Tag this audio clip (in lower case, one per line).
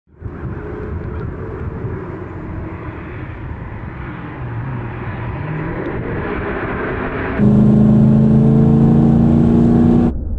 car
vehicle
outside, rural or natural